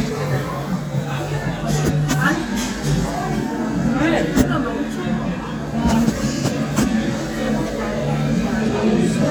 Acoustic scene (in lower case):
crowded indoor space